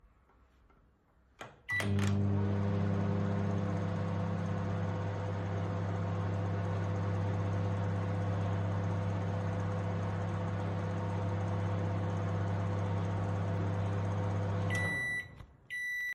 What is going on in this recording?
Went into the kitchen to heat up some food. Opened the microwave, turned it on and then closed it